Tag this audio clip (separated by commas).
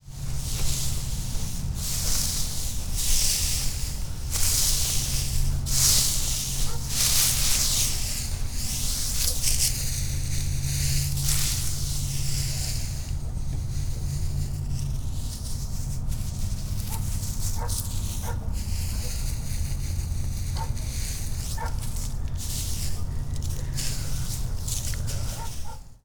Dog, Animal, pets